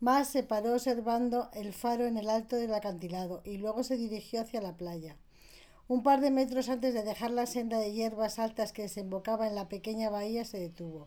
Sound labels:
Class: speech